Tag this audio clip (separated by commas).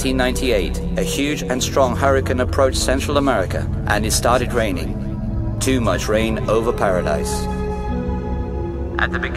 Music, Speech